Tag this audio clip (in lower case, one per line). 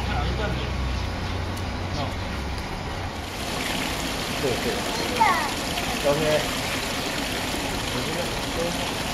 water